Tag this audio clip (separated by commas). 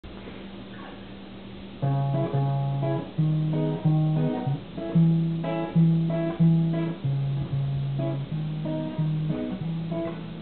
Plucked string instrument, Acoustic guitar, Guitar, Musical instrument, Music